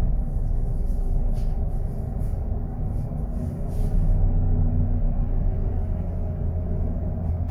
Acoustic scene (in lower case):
bus